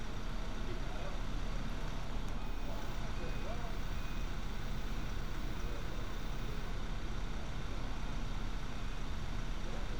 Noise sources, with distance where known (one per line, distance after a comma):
large-sounding engine
unidentified alert signal, far